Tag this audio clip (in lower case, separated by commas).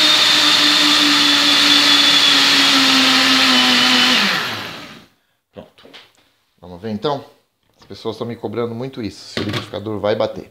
blender, speech